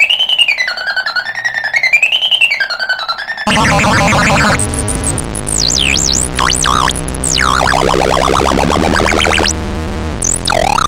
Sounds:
music

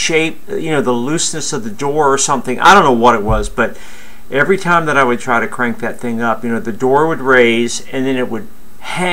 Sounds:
speech

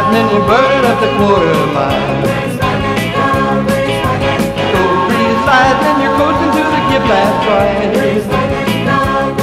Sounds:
music, rock music, rock and roll

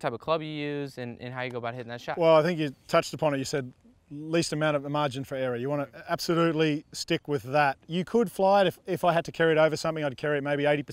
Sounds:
speech

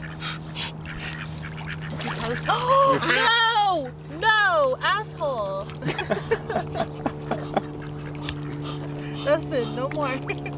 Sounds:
duck, speech, quack

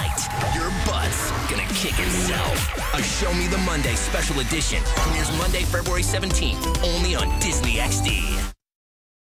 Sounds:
speech, music

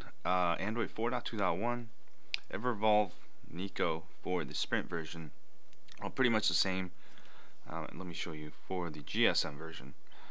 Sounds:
inside a small room, speech

